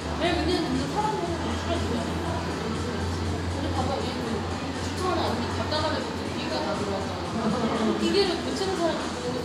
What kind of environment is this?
cafe